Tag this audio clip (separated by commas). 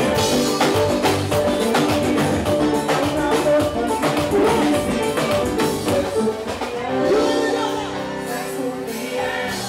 Music, Speech